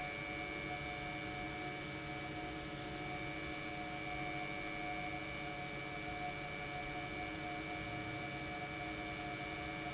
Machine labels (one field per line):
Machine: pump